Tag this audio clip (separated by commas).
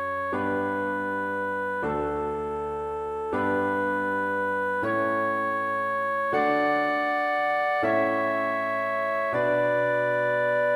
Music